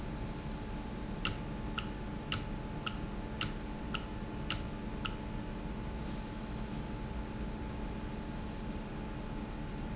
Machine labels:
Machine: valve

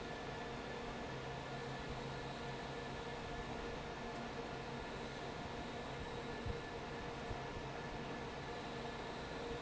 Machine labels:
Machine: fan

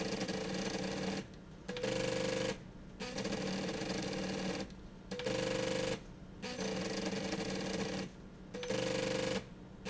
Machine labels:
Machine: slide rail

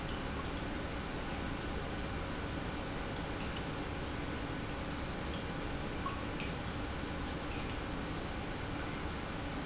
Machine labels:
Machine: pump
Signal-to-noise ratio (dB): -6 dB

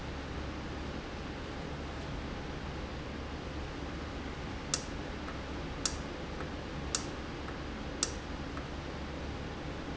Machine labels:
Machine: valve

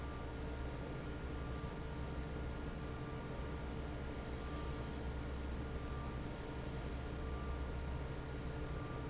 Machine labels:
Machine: fan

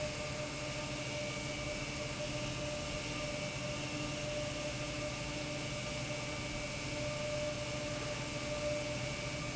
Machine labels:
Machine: pump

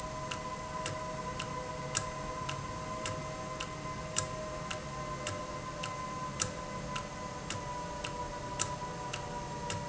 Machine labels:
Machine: valve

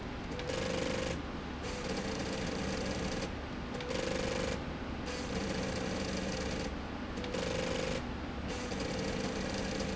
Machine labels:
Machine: slide rail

